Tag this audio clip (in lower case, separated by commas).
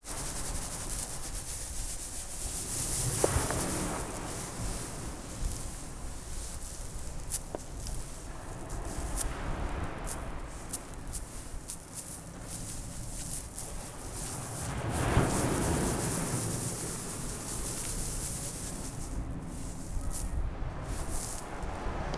water, ocean